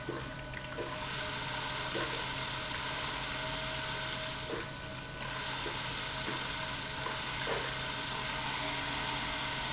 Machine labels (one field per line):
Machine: pump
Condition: abnormal